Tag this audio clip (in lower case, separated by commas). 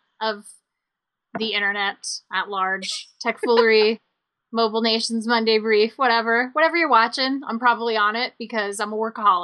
speech